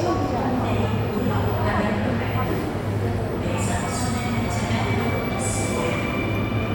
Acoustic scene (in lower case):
subway station